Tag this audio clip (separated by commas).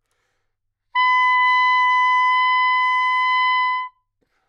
Music, woodwind instrument, Musical instrument